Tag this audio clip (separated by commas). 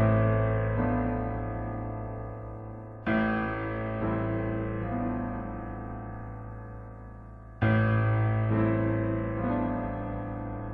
Violin, Musical instrument, Music